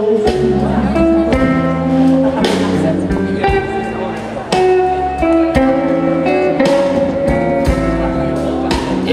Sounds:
blues
music

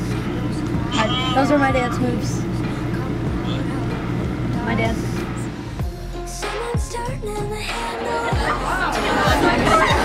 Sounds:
speech
music

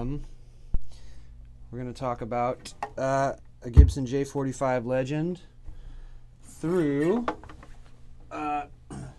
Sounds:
speech

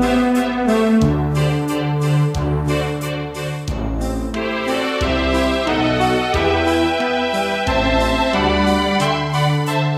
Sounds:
music

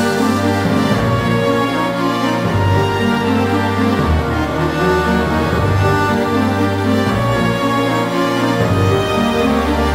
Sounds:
theme music
music
soundtrack music

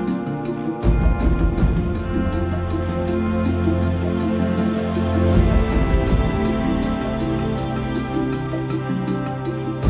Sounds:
new-age music

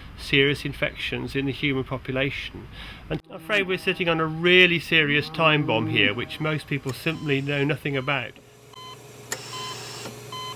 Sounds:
inside a small room
speech
outside, rural or natural
pig
animal

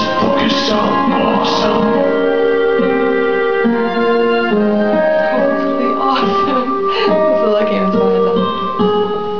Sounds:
orchestra

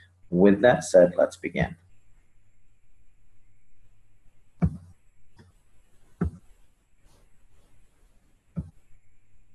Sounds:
speech

